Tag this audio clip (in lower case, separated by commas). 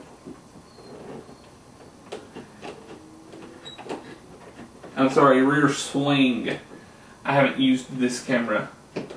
speech